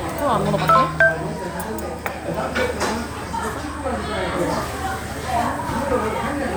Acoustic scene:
restaurant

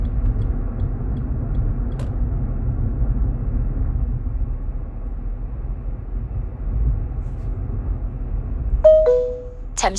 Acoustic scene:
car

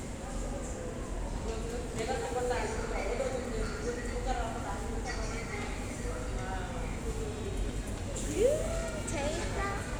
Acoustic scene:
subway station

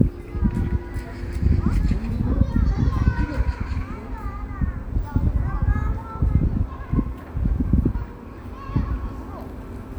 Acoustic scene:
park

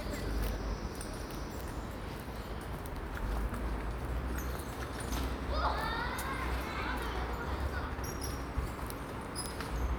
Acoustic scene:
park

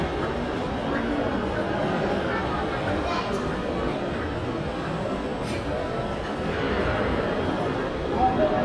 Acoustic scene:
crowded indoor space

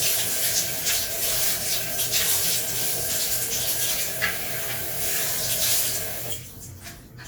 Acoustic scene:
restroom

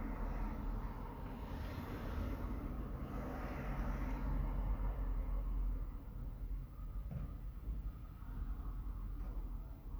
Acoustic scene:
residential area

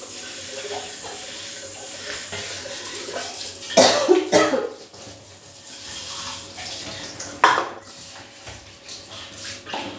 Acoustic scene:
restroom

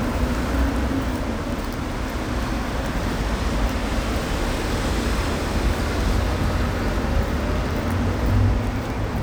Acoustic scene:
street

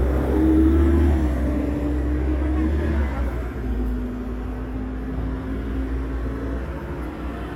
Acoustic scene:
street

